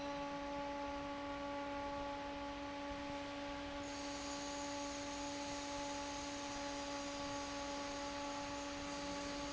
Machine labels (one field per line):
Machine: fan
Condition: normal